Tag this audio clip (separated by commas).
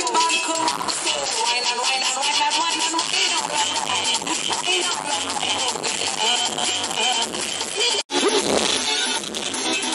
Music